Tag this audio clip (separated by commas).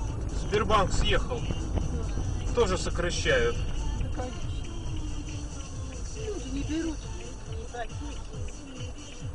Car, Motor vehicle (road), Speech, Music, Vehicle